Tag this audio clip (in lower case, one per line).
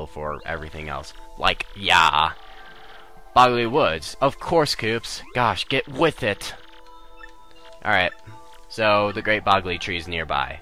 music
speech